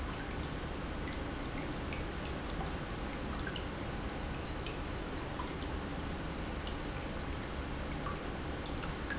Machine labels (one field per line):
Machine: pump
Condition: normal